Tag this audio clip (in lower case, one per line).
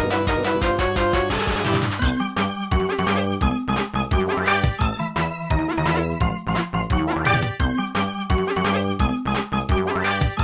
music